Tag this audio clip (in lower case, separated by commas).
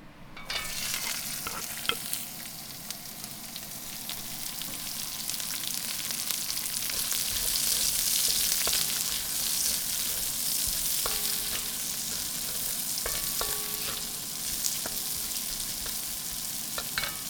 home sounds, frying (food)